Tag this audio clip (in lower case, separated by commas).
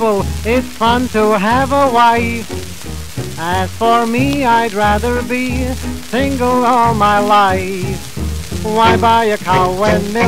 speech, music